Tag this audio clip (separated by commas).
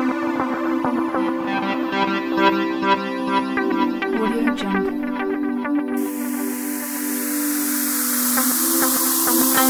Music, Background music